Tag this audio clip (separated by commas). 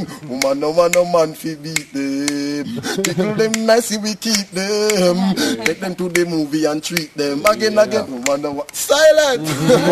Speech